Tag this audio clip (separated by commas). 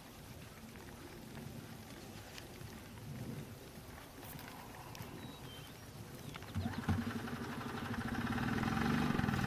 Clip-clop